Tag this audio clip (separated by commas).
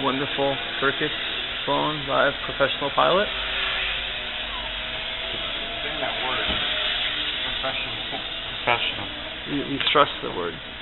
Speech